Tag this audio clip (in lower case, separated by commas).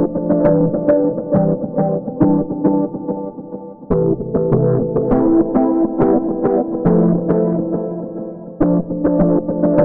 musical instrument, music